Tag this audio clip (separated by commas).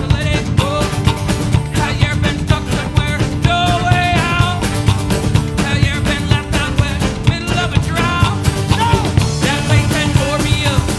Music